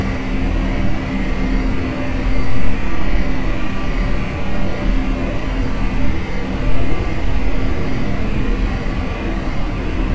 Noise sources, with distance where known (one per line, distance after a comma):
rock drill